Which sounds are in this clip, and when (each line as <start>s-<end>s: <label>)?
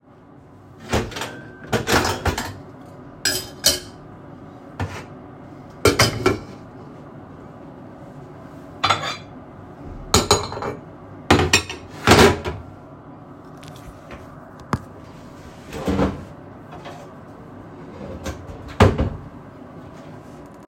0.7s-1.3s: wardrobe or drawer
0.8s-6.6s: cutlery and dishes
8.8s-12.6s: cutlery and dishes
15.6s-16.4s: wardrobe or drawer
17.9s-19.4s: wardrobe or drawer